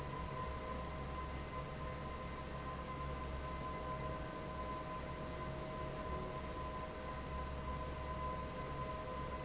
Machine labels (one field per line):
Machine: fan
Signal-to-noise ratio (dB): 0 dB